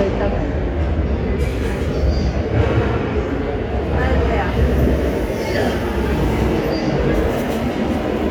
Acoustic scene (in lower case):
subway station